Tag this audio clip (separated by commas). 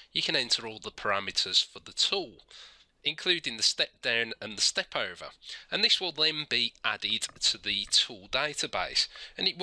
Speech